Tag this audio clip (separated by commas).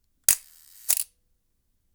Camera, Mechanisms